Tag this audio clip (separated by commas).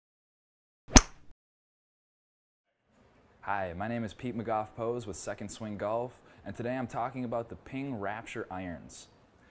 Speech